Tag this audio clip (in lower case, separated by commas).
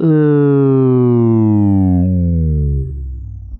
human voice, speech, speech synthesizer